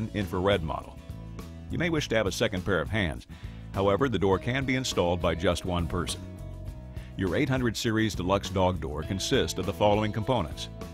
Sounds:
music
speech

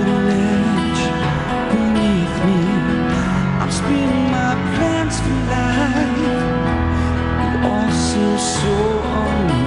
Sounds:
music

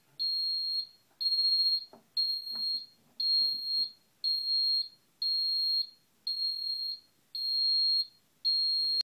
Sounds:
smoke detector

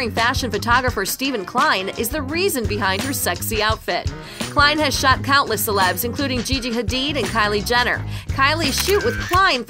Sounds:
speech
music

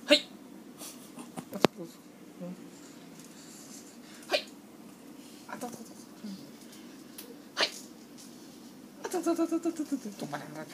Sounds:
speech

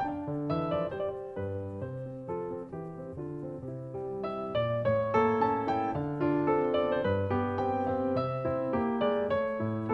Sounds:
music

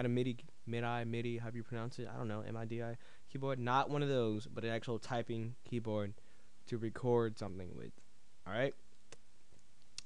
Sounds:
speech

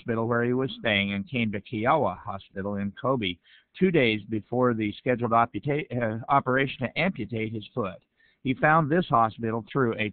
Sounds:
speech

